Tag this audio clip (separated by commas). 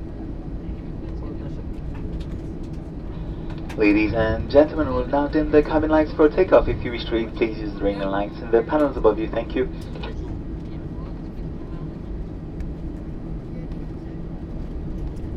Vehicle, airplane, Aircraft